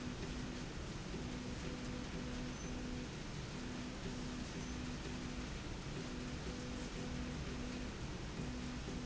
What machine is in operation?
slide rail